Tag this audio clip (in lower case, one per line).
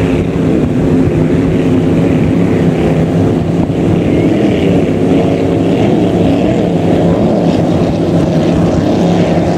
vehicle
speedboat
boat
speedboat acceleration